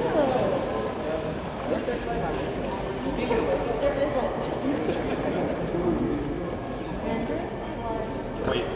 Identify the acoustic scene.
crowded indoor space